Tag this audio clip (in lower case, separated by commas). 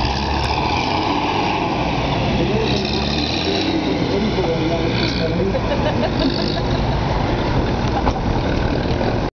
speech